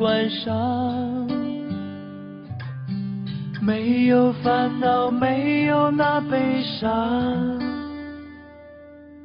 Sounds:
Music

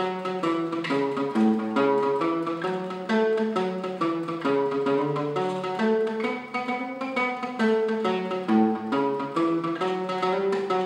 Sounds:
Music, Musical instrument, Guitar, Plucked string instrument

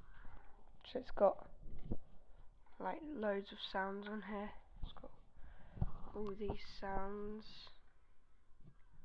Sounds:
Speech

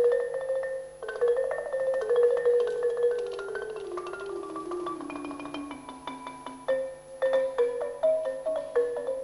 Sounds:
Percussion, Music, Musical instrument

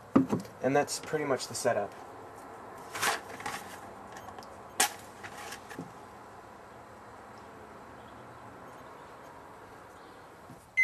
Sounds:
Speech

